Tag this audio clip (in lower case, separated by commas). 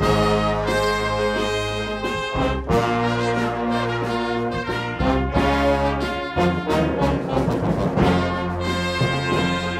music, trumpet, musical instrument, brass instrument, orchestra, trombone